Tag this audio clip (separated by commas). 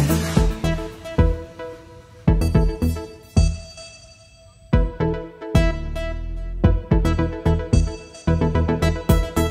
Synthesizer